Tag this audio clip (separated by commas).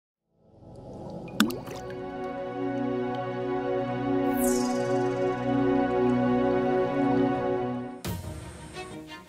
Music